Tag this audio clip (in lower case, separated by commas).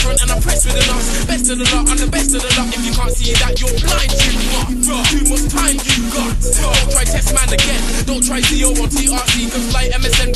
music